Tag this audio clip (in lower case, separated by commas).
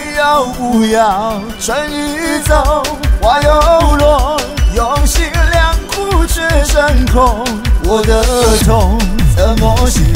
music